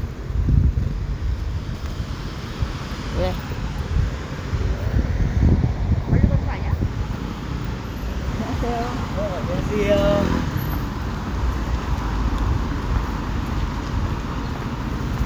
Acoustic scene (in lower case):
residential area